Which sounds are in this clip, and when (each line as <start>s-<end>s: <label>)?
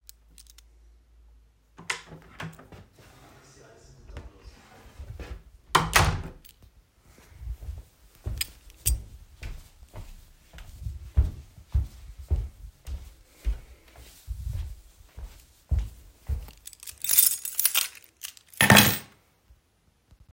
0.3s-0.7s: keys
1.8s-3.8s: door
4.1s-6.4s: door
7.4s-16.6s: footsteps
8.3s-9.1s: keys
16.6s-19.1s: keys